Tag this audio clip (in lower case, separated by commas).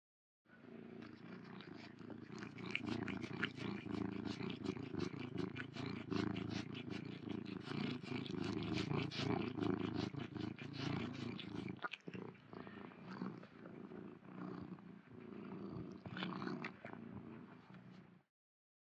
animal, domestic animals, cat, purr